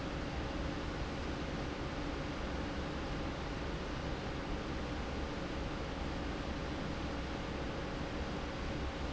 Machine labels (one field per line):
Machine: fan